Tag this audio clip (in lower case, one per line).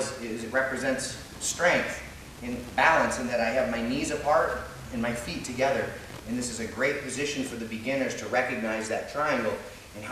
speech